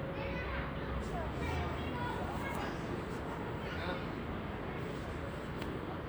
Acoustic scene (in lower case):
residential area